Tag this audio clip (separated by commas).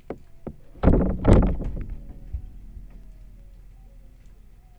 Thump